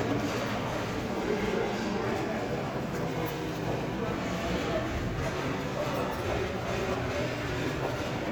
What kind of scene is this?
crowded indoor space